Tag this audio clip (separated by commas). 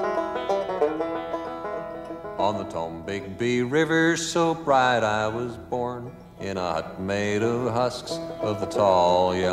Music